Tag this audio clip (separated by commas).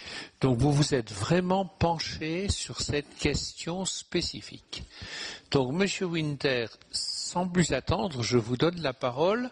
Speech